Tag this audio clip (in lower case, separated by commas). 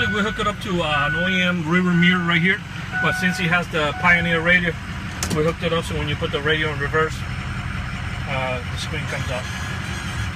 speech